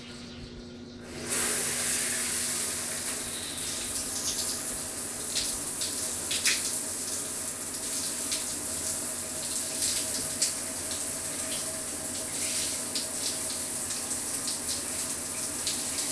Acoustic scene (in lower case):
restroom